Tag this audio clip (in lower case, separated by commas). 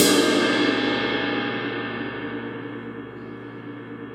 crash cymbal, music, cymbal, musical instrument, percussion